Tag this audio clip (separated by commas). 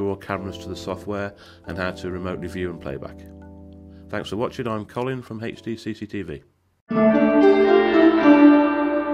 Music, Speech